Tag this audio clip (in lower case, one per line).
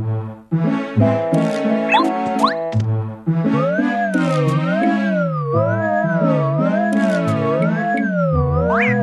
music